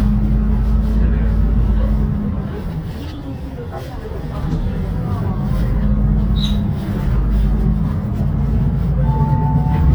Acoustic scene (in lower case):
bus